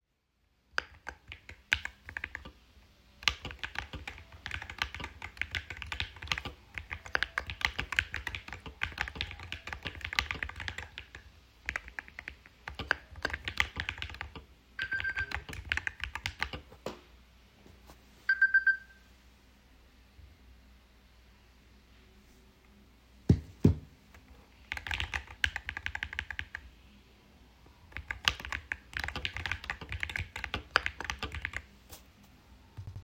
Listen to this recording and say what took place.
I typed on my keyboard when I got a phone notification. I picked up the phone, put it down again, and continued to type.